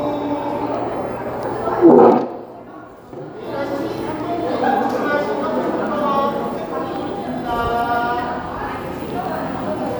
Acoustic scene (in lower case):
cafe